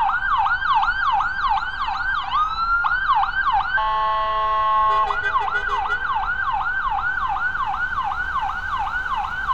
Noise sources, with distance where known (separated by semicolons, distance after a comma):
car horn, near; siren, near